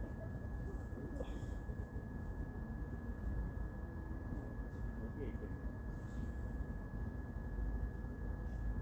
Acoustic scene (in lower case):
park